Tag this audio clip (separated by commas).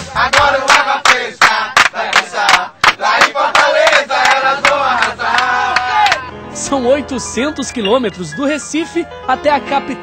Music, Speech